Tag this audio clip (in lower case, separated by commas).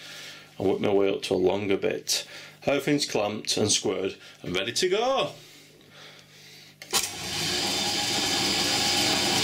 speech, tools